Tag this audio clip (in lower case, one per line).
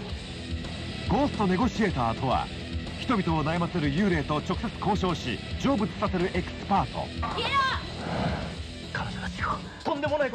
music
speech